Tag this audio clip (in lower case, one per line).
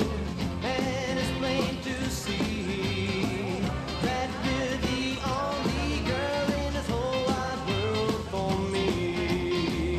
singing